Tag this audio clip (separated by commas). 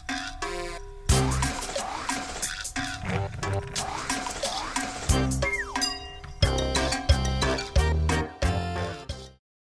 Music